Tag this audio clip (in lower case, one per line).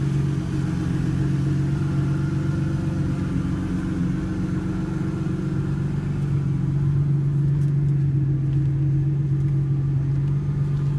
car
vehicle
motor vehicle (road)